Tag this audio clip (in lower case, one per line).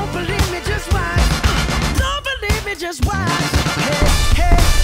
music